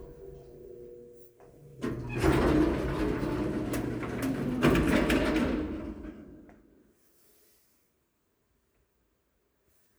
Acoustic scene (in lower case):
elevator